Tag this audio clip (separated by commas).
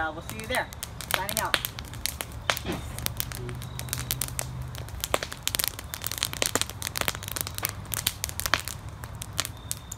fire crackling